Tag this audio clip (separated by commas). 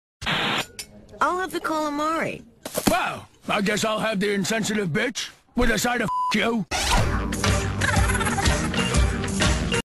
Speech, Music